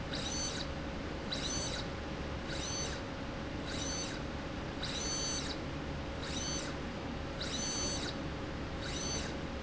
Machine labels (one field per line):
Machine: slide rail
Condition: abnormal